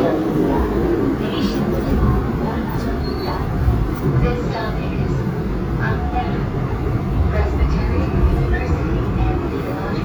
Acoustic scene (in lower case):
subway train